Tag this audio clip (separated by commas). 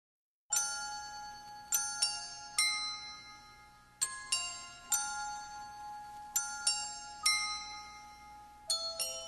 Music, Ding-dong